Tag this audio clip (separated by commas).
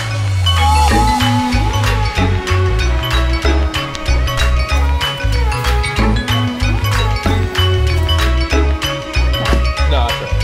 Speech, Music